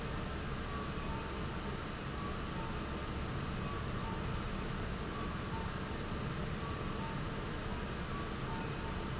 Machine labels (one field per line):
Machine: fan